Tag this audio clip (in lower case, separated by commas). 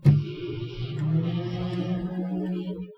domestic sounds, microwave oven